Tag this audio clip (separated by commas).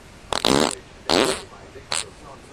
Fart